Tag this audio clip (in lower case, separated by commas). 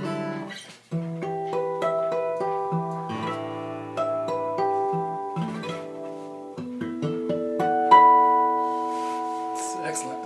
acoustic guitar, musical instrument, guitar, speech, strum, music, plucked string instrument